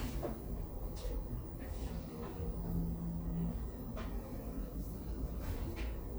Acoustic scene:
elevator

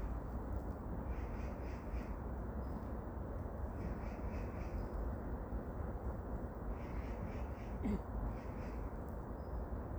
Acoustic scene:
park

